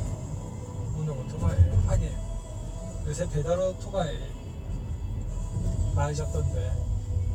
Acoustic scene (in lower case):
car